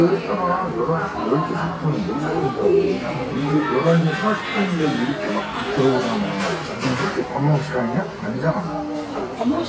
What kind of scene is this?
crowded indoor space